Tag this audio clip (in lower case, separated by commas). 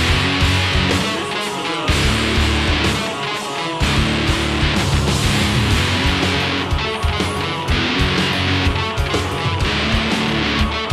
music, rhythm and blues